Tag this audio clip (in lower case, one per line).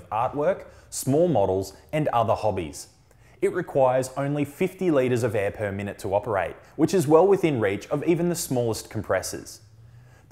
speech